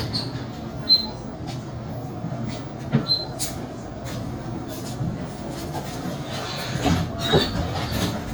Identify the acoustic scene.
bus